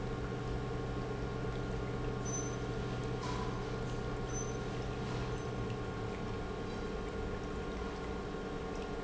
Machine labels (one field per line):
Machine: pump